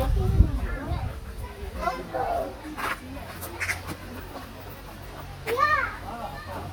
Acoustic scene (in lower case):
park